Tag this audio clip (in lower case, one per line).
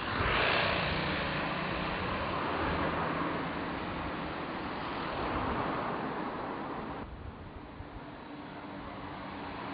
vehicle